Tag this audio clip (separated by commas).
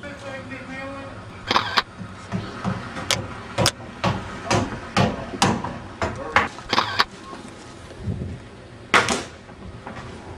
Speech